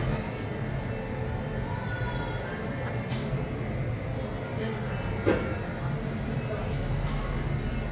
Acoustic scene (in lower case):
cafe